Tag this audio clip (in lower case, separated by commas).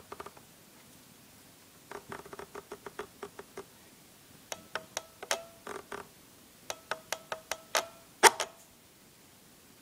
mechanisms, ratchet